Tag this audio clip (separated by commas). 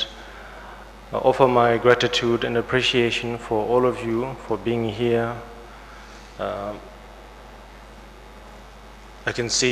Narration, Male speech, Speech